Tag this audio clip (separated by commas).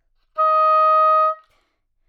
Wind instrument, Music, Musical instrument